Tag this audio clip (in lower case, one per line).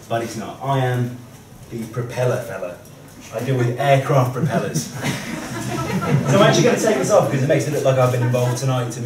speech